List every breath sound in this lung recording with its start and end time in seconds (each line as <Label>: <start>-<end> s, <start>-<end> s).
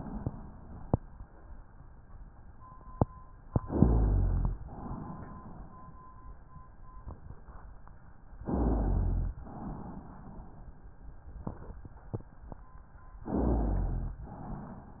Inhalation: 3.62-4.56 s, 8.45-9.38 s, 13.28-14.22 s
Exhalation: 4.59-6.13 s, 9.39-10.93 s
Rhonchi: 3.62-4.56 s, 8.45-9.38 s, 13.28-14.22 s